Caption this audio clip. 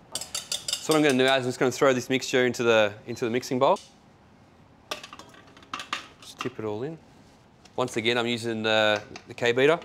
A man speeches while metal objects taps